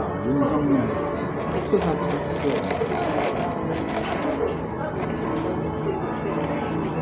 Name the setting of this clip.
cafe